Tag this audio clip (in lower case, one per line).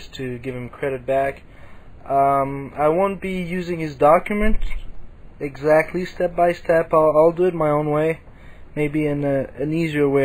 speech